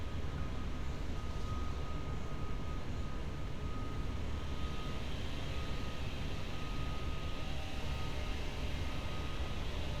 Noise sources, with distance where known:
unidentified powered saw, far
unidentified alert signal, far

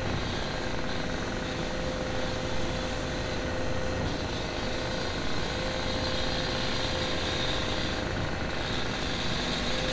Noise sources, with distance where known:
unidentified impact machinery

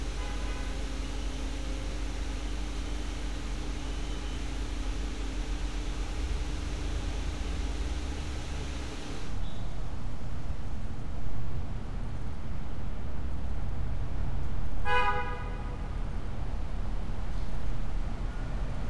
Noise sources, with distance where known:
car horn

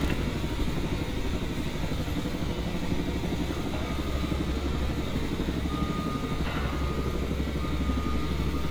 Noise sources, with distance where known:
unidentified impact machinery, near
reverse beeper

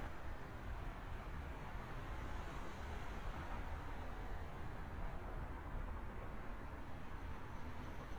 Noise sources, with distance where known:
background noise

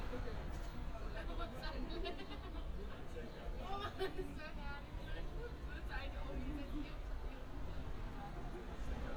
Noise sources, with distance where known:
person or small group talking, near

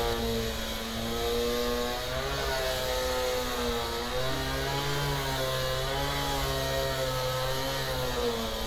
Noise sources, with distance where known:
unidentified powered saw, near

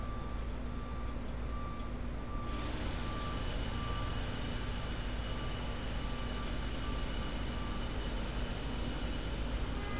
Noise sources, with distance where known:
engine of unclear size
reverse beeper

